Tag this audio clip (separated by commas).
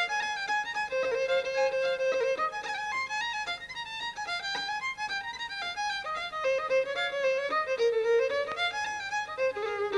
Music